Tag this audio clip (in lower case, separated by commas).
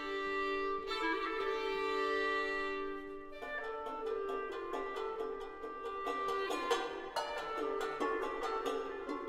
fiddle, bowed string instrument, music